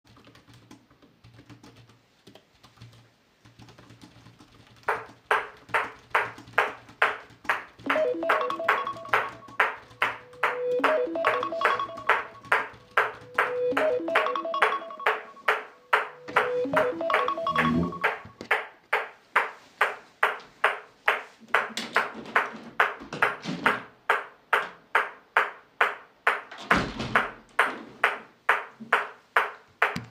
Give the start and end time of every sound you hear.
[0.00, 14.67] keyboard typing
[7.77, 18.42] phone ringing
[21.47, 23.98] window
[26.49, 27.49] window

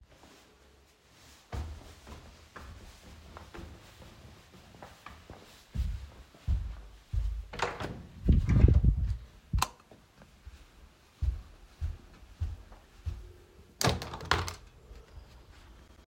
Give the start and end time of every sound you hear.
[1.43, 7.44] footsteps
[7.49, 8.13] door
[9.48, 9.74] light switch
[9.87, 13.43] footsteps
[13.75, 14.63] window

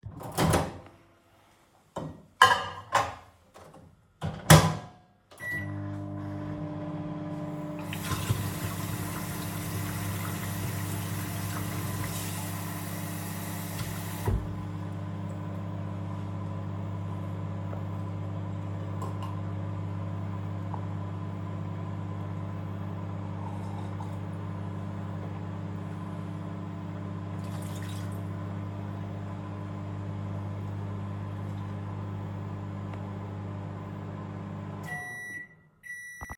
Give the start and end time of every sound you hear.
[1.97, 36.04] microwave
[7.99, 14.54] running water

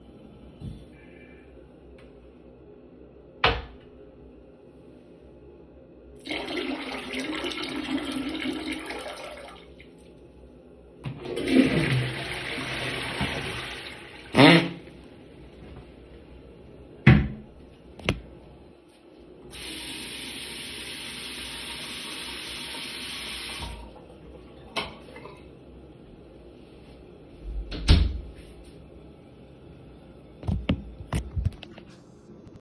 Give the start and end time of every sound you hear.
[10.94, 14.89] toilet flushing
[19.34, 23.97] running water
[24.61, 24.95] light switch
[27.37, 28.48] door

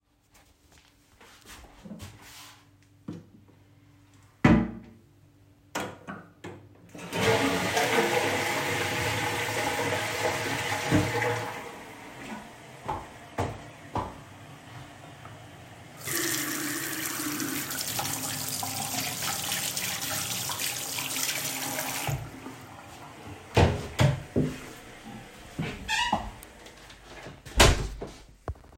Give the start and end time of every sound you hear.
[6.83, 12.46] toilet flushing
[12.72, 14.51] footsteps
[15.91, 22.33] running water
[23.43, 28.75] door
[26.14, 26.80] footsteps

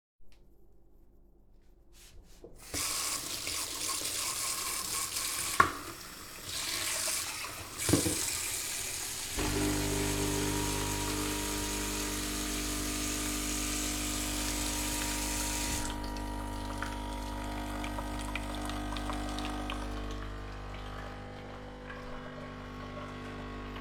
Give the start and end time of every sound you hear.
[2.58, 15.91] running water
[9.38, 23.81] coffee machine

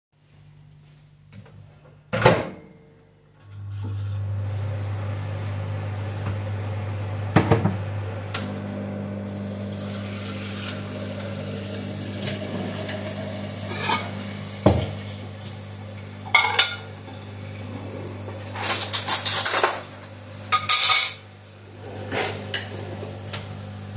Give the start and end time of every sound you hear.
[3.66, 23.96] microwave
[9.43, 23.96] running water
[13.69, 14.13] cutlery and dishes
[14.61, 14.91] cutlery and dishes
[16.30, 16.83] cutlery and dishes
[16.86, 21.53] cutlery and dishes
[21.98, 22.86] wardrobe or drawer

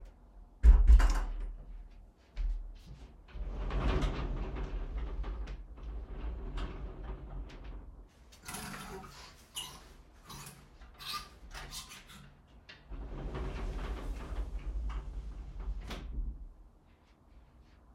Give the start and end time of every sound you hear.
[0.60, 1.65] door
[2.33, 3.35] footsteps
[3.35, 8.28] wardrobe or drawer
[12.82, 16.33] wardrobe or drawer

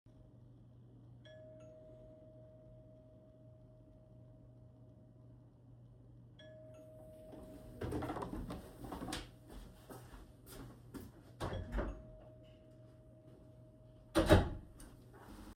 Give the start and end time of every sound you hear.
[0.97, 1.83] bell ringing
[5.88, 7.30] bell ringing
[9.21, 11.25] footsteps
[11.39, 12.06] bell ringing
[13.78, 15.02] door

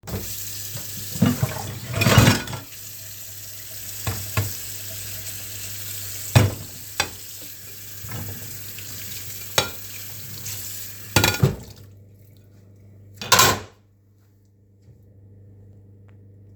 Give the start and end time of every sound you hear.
[0.02, 11.35] running water
[1.15, 2.50] cutlery and dishes
[6.26, 6.70] cutlery and dishes
[11.00, 11.43] cutlery and dishes
[13.16, 13.79] cutlery and dishes

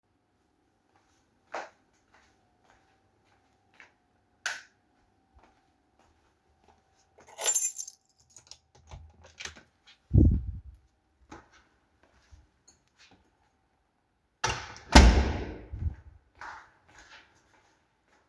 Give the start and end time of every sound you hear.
[1.48, 3.97] footsteps
[4.37, 4.70] light switch
[5.13, 7.38] footsteps
[7.22, 8.61] keys
[8.85, 9.70] door
[11.26, 13.61] footsteps
[14.32, 15.75] door
[16.31, 18.28] footsteps

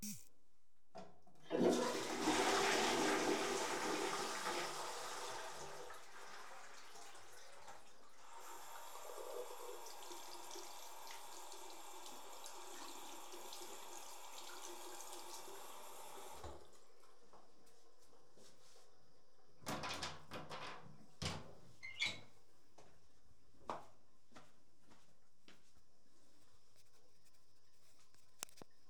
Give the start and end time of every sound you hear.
[0.84, 16.58] running water
[1.49, 8.21] toilet flushing
[19.57, 22.45] door
[22.73, 26.65] footsteps

